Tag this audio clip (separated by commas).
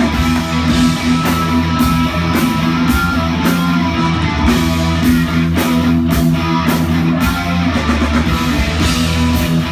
Music